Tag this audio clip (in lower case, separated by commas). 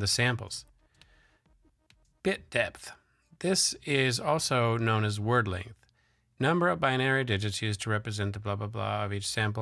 speech